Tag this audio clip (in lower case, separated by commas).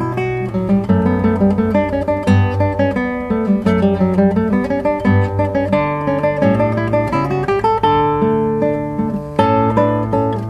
plucked string instrument, acoustic guitar, strum, musical instrument, guitar, music